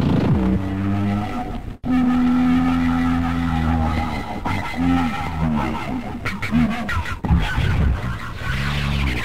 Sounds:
sound effect, music

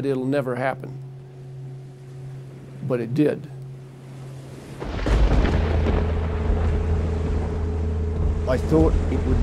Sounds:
speech, outside, rural or natural

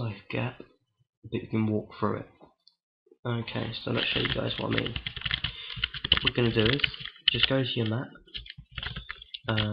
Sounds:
computer keyboard, speech

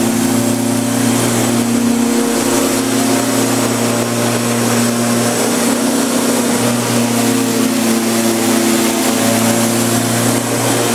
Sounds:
lawn mowing, vehicle, lawn mower

